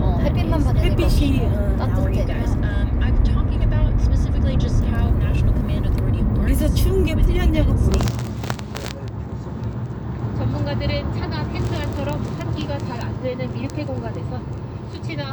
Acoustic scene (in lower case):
car